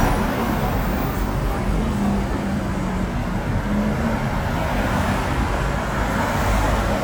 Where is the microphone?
on a street